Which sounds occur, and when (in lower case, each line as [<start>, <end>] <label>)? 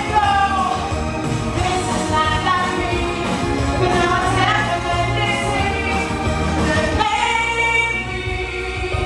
[0.00, 0.95] female speech
[0.00, 9.05] music
[1.61, 3.47] female speech
[3.83, 6.56] female speech
[6.93, 9.05] female speech